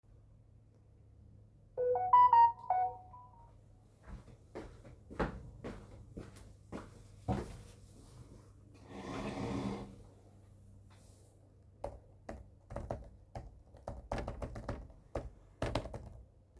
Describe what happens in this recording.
My phone recieves a notification, walk over to where the phone is and move my chair to sit down,the I type a short message on the keyboard.